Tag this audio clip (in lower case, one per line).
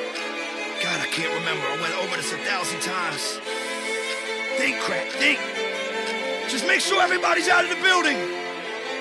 speech
music
background music